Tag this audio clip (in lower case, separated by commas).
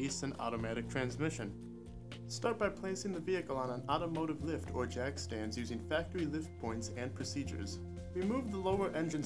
speech, music